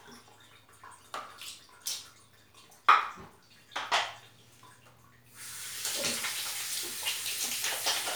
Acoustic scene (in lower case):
restroom